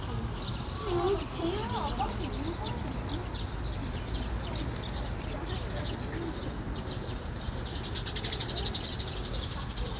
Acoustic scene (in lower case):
park